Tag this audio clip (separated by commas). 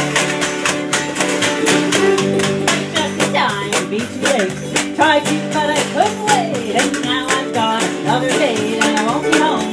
Musical instrument, Music